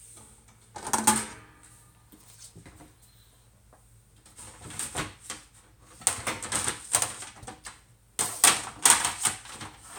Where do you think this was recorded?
in a kitchen